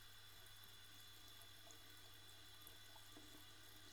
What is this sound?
water tap